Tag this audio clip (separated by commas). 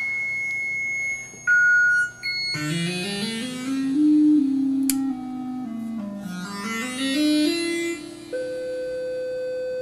Music, Musical instrument, Synthesizer